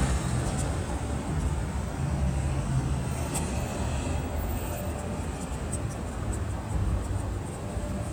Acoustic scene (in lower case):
street